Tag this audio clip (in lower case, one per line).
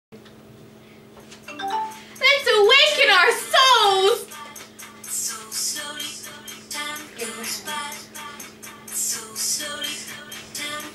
music
speech
inside a small room